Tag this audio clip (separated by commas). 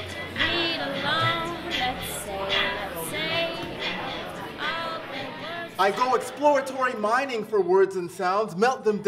Music, Speech